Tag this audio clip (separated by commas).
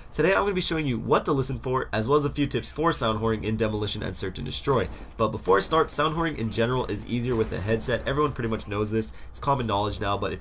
Speech